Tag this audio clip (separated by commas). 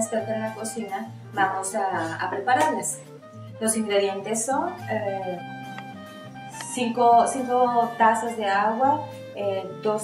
Tap, Music, Speech